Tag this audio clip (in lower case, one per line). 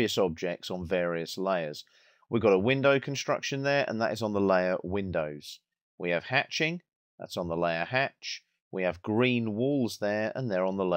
speech